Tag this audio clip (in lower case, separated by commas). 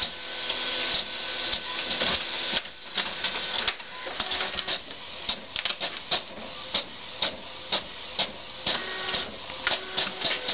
printer